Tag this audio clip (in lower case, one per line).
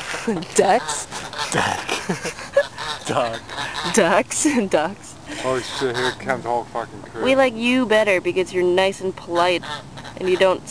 goose
fowl
honk